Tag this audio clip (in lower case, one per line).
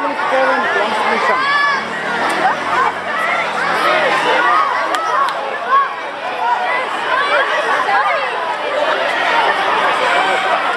speech
outside, urban or man-made